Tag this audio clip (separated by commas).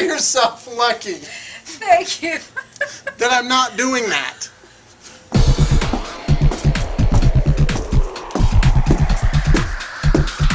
Speech, Music